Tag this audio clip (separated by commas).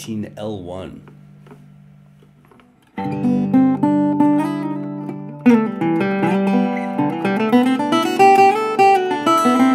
Speech, Music, Plucked string instrument, Guitar, Acoustic guitar, Musical instrument